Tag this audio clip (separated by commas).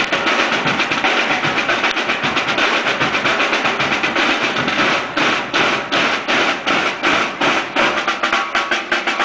Music